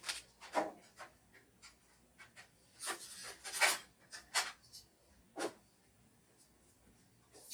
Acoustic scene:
kitchen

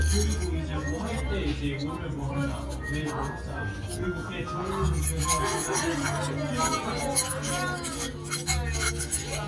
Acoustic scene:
crowded indoor space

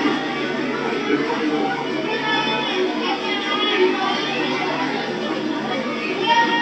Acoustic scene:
park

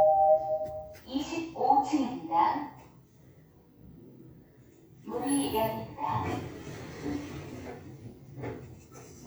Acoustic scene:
elevator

